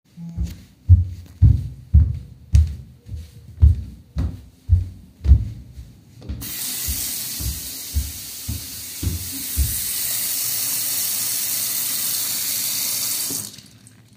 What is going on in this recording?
I did some footsteps while moving I opened the sink and the sounds overlaped for some seconds, I moved in the bathroom while recording